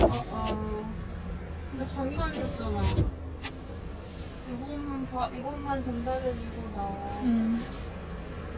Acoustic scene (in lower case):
car